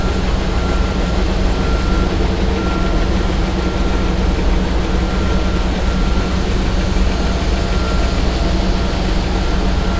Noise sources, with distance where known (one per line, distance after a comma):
engine of unclear size, near
reverse beeper, far